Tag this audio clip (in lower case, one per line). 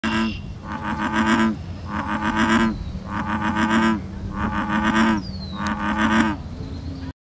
frog